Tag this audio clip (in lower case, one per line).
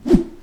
whoosh